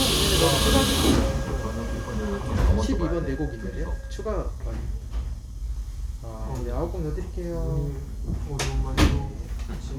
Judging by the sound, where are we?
on a subway train